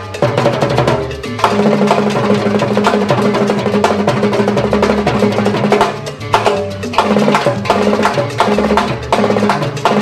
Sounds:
playing timbales

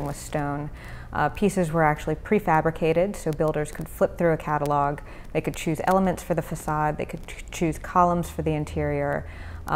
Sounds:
Speech, inside a small room

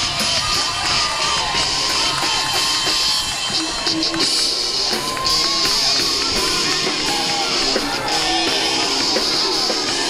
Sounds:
Music, Rhythm and blues

